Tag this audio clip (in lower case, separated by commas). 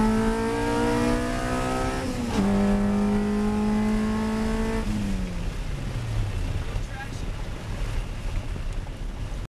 car, vehicle, speech